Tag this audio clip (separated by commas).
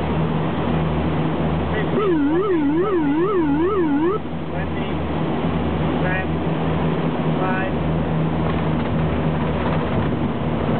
Speech